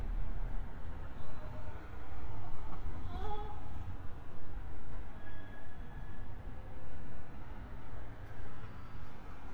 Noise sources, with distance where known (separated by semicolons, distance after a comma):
person or small group talking